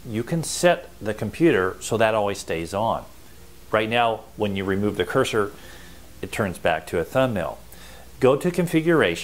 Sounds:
speech

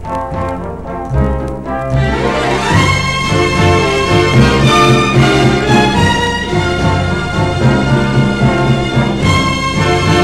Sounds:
music

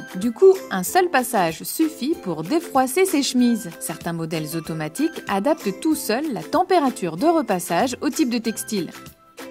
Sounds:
music
speech

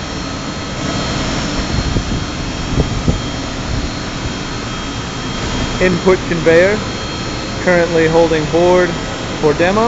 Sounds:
speech

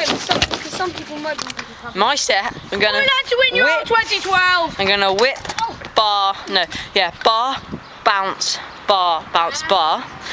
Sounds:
speech

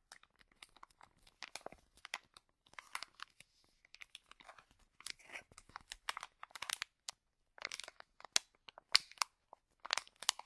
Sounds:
crinkling

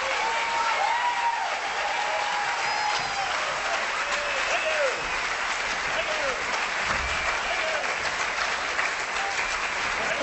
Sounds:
people clapping
applause

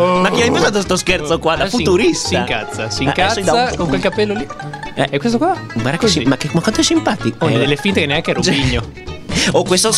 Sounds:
speech
music

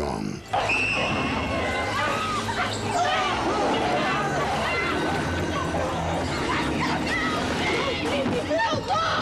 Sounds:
mice

